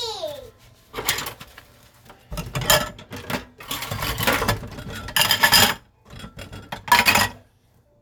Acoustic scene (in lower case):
kitchen